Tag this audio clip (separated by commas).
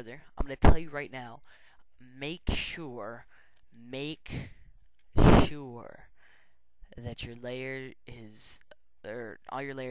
Speech